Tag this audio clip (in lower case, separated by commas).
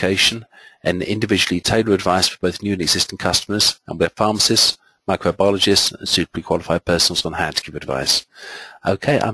speech